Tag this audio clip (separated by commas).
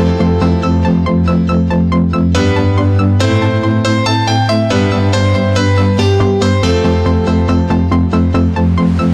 Music